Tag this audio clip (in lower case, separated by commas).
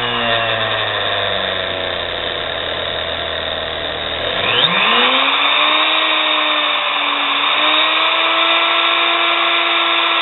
inside a small room, tools